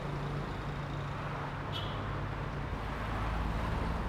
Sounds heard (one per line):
motorcycle engine accelerating
car wheels rolling
motorcycle
car
car engine accelerating